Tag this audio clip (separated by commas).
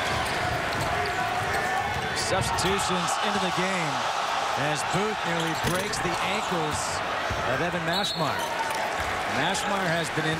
Basketball bounce